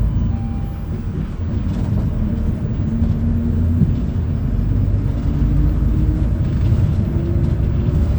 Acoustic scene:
bus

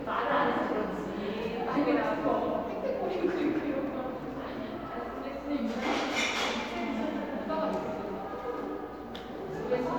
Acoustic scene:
crowded indoor space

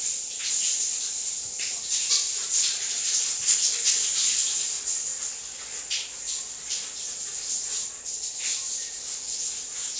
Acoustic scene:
restroom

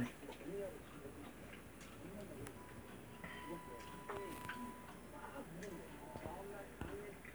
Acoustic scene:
restaurant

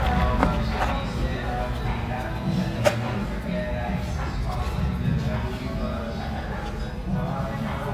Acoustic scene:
restaurant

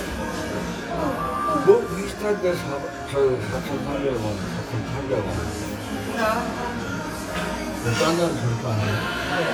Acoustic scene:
cafe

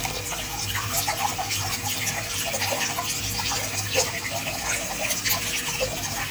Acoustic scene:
restroom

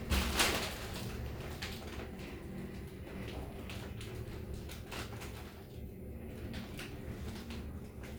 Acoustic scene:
elevator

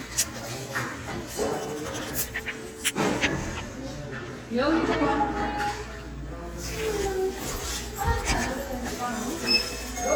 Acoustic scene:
crowded indoor space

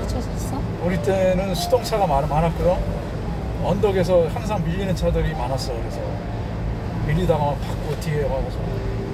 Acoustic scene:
car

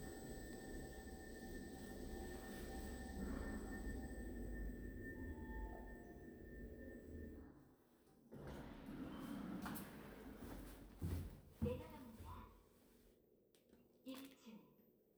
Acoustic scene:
elevator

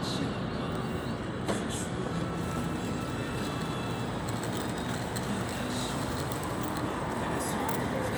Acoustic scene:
street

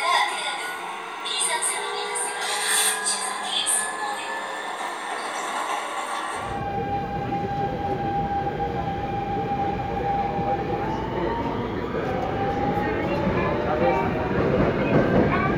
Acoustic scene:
subway train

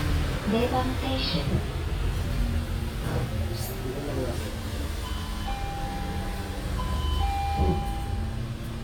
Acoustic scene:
bus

